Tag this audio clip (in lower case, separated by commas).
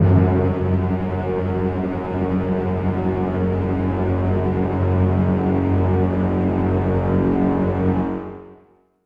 music, musical instrument